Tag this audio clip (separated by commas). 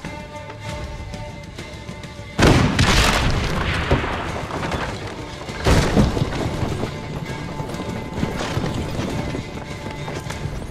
Boom, Music